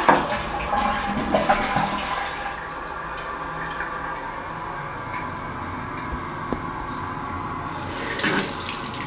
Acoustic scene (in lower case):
restroom